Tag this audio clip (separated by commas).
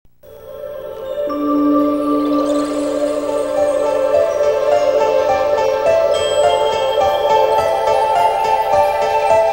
Music